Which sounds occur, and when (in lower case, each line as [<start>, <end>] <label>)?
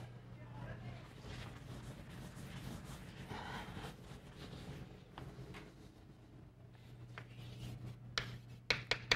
[0.00, 9.15] mechanisms
[0.36, 1.03] kid speaking
[1.06, 5.01] rub
[3.16, 3.86] kid speaking
[5.13, 5.22] generic impact sounds
[5.45, 5.61] generic impact sounds
[6.68, 8.00] writing
[7.15, 7.29] generic impact sounds
[8.16, 8.30] tap
[8.68, 8.77] tap
[8.90, 8.97] tap
[9.11, 9.15] tap